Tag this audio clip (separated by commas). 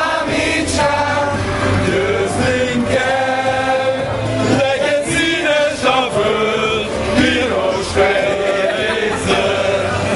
Male singing